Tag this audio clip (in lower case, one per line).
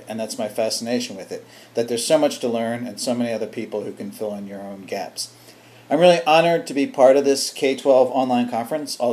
speech